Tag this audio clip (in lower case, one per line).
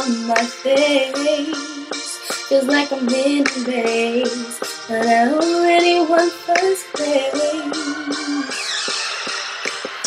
music
female singing